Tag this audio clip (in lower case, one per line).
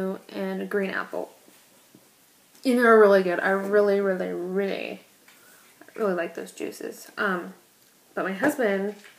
speech